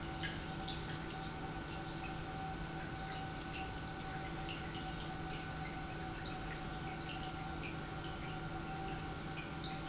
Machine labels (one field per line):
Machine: pump